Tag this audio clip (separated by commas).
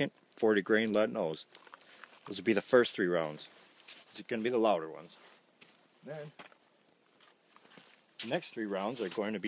Speech